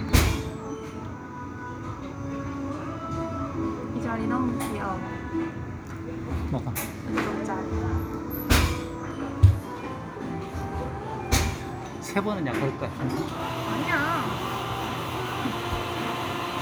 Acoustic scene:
cafe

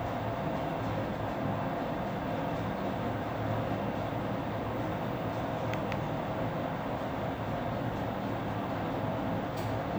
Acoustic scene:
elevator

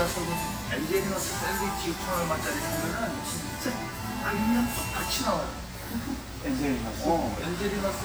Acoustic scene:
restaurant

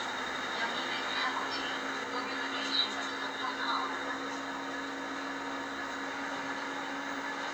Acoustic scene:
bus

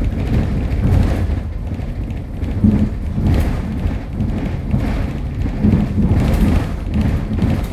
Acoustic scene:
bus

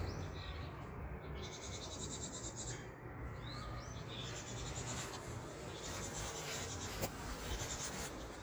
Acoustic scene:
park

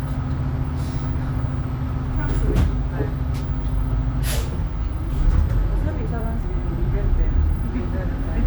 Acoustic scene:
bus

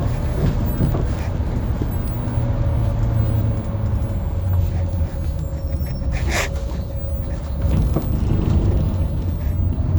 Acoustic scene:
bus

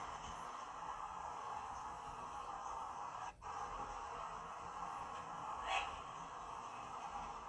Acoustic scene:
park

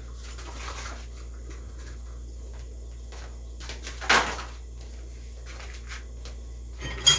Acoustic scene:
kitchen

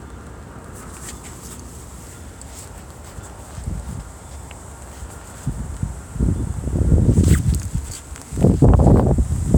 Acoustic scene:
residential area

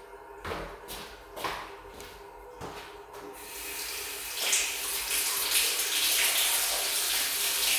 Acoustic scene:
restroom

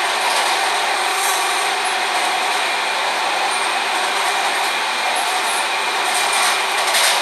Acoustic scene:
subway train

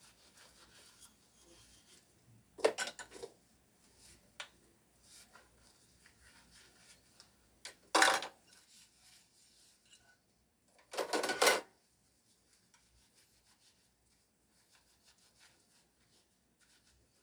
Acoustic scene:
kitchen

